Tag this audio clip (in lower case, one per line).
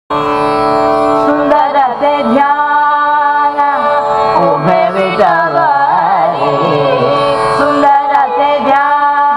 inside a public space
music
singing
carnatic music